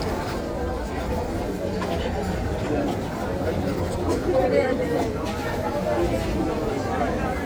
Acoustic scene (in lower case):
crowded indoor space